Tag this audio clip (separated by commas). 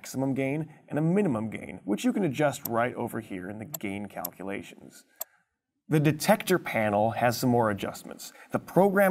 Speech